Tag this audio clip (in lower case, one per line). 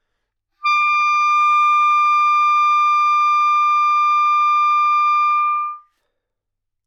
woodwind instrument
musical instrument
music